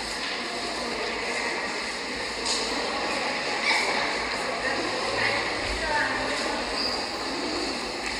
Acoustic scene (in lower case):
subway station